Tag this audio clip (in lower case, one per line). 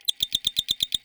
mechanisms